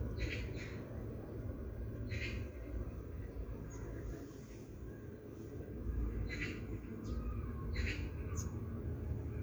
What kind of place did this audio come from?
park